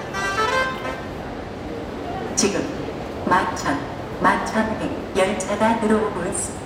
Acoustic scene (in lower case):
subway station